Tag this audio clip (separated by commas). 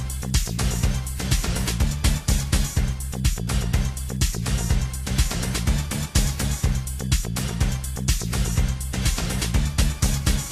Music